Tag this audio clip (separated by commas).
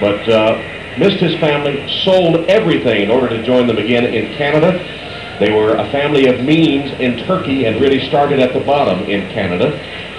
Speech